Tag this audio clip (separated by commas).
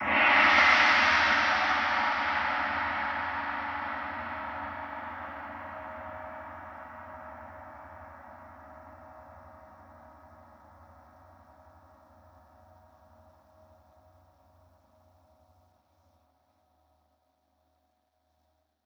Musical instrument, Percussion, Gong, Music